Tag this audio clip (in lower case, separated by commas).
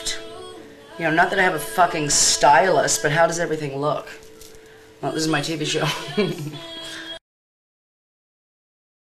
music, speech